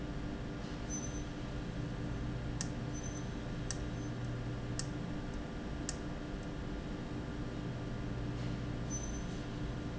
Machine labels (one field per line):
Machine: valve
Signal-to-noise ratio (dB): -6 dB